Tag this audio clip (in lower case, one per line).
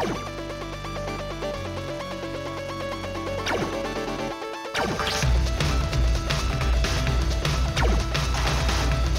music